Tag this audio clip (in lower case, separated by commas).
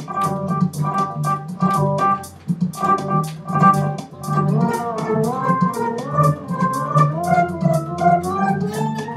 guitar, bass guitar, musical instrument, music, plucked string instrument